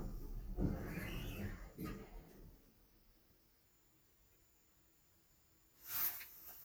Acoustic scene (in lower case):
elevator